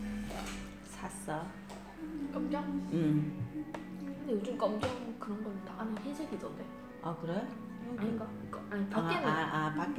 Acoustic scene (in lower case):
cafe